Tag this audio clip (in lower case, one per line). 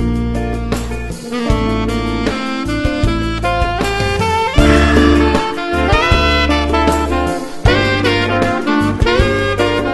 playing saxophone